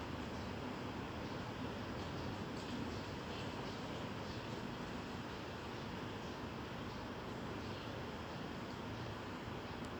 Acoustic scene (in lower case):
residential area